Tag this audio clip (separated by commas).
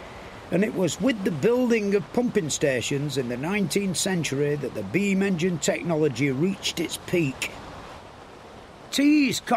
Speech